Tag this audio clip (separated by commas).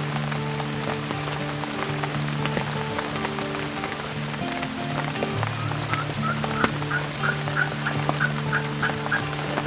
Fowl, Gobble, Turkey